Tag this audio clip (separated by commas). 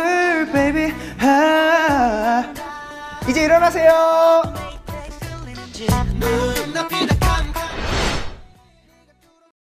Speech, Music